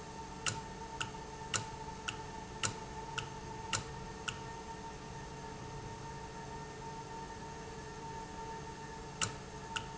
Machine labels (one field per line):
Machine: valve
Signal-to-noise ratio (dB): 0 dB